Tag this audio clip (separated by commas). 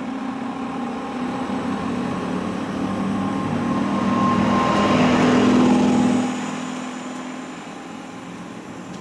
Railroad car, Train, Rail transport, Vehicle